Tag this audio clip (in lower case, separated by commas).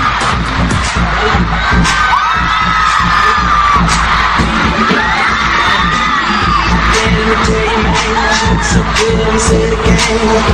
pop music, singing, inside a large room or hall, music